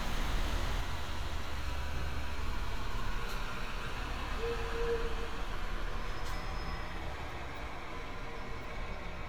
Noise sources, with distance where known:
large-sounding engine, far; unidentified alert signal

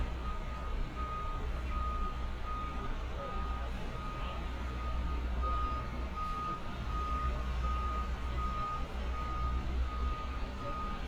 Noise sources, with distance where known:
reverse beeper, near

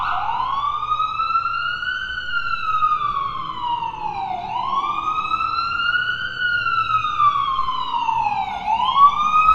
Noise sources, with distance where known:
siren, near

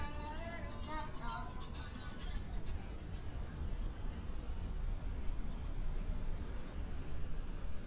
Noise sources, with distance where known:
unidentified human voice

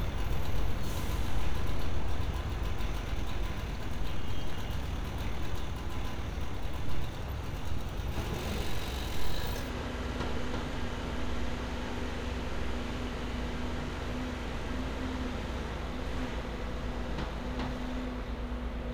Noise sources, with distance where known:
large-sounding engine, near

